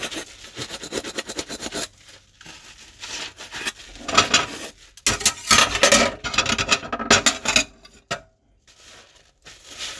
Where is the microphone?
in a kitchen